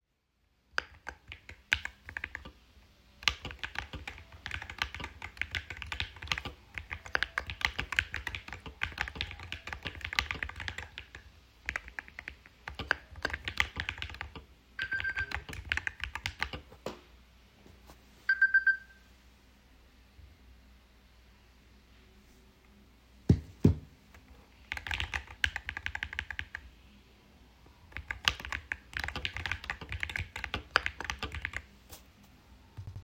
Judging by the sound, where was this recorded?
office